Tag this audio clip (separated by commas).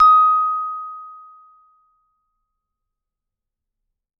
Music, Mallet percussion, Percussion, Musical instrument